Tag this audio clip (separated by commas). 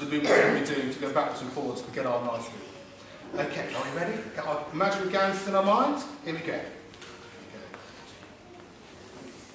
Speech